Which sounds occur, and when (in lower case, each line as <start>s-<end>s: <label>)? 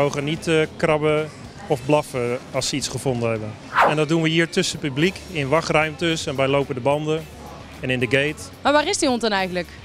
0.0s-1.3s: man speaking
0.0s-9.8s: background noise
1.7s-2.4s: man speaking
2.5s-3.5s: man speaking
3.6s-4.1s: sound effect
3.7s-7.2s: man speaking
7.8s-8.5s: man speaking
8.6s-9.7s: female speech